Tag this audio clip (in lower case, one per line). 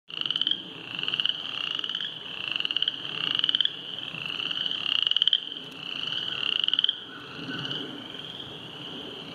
frog croaking